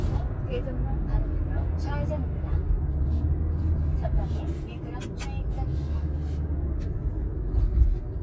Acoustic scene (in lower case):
car